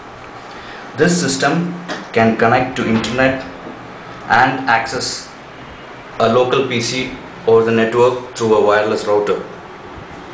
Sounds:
speech

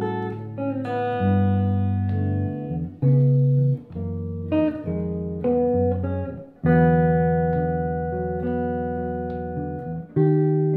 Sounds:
strum, music, guitar, musical instrument, plucked string instrument

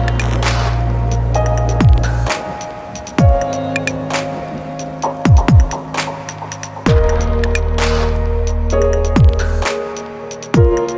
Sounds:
music

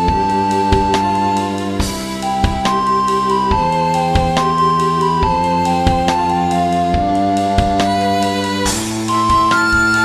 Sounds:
musical instrument, music

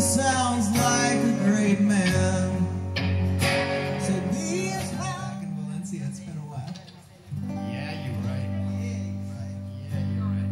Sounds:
music, speech

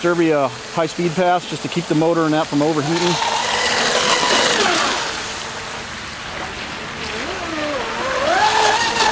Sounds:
speech, boat, outside, urban or man-made

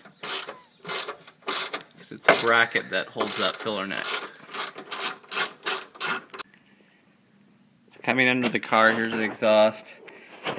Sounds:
speech, outside, urban or man-made

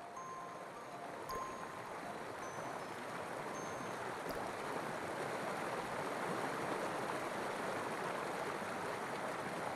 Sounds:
music, water

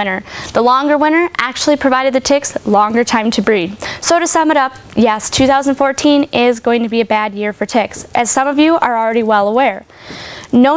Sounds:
speech

